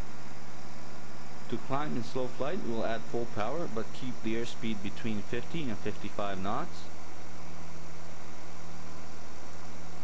A man speaks while an aircraft engine runs